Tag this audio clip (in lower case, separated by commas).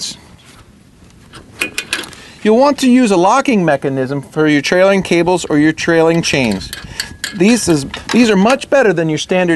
speech